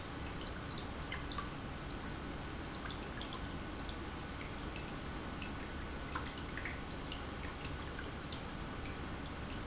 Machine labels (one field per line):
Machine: pump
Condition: normal